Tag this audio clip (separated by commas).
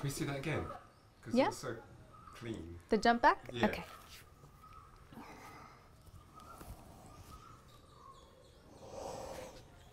Environmental noise